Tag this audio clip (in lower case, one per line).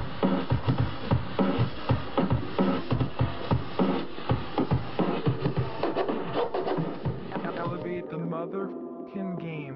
scratching (performance technique)
music
speech